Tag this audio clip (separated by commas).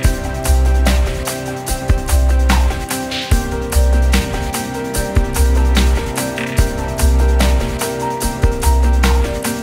Music